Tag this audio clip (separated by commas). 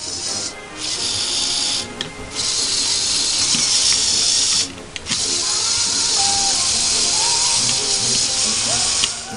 Music, inside a small room